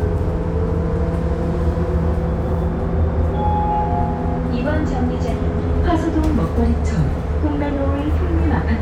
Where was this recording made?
on a bus